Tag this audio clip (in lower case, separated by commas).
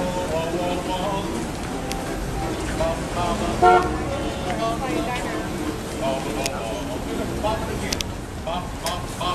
outside, urban or man-made, crowd, speech, ukulele, music